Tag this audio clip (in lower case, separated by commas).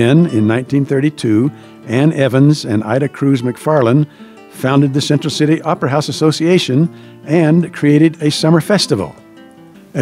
music, speech